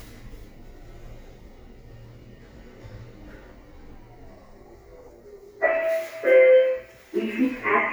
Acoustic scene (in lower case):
elevator